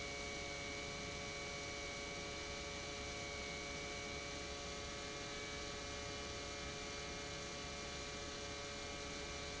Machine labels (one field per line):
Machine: pump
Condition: normal